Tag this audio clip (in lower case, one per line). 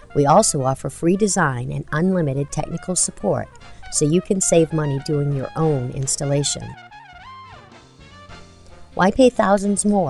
speech
music